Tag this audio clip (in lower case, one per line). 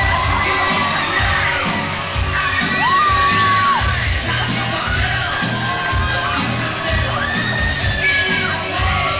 guitar
plucked string instrument
musical instrument
bass guitar
strum
electric guitar
music